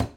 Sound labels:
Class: cupboard; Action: closing; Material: wooden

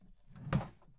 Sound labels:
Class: drawer; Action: opening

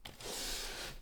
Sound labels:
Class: furniture moving; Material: wooden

